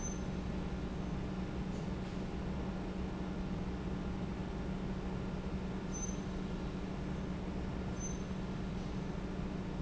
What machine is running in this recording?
fan